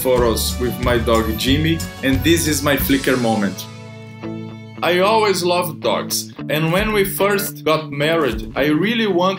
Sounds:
Speech, Music

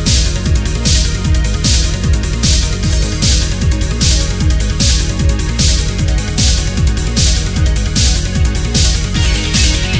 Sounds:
Electronic music, Techno, Music

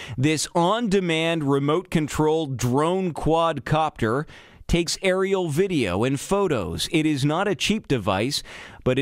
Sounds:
Speech

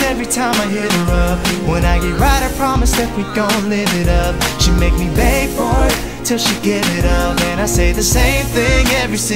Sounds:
Music, Male singing

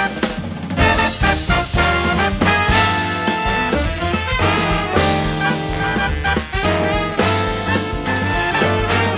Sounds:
Music

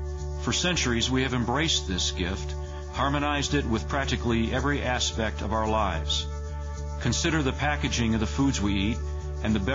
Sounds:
Speech, Music

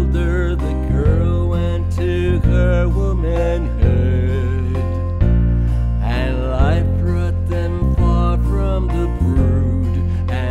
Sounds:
Music

